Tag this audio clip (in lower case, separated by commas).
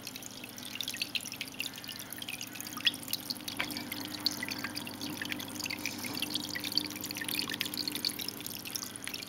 animal